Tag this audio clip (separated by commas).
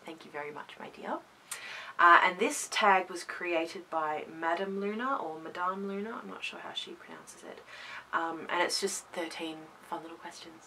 Speech